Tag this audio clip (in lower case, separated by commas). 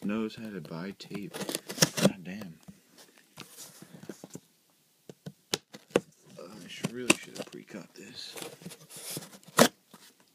speech